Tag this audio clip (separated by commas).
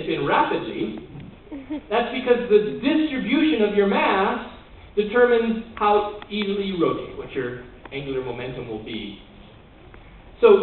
Speech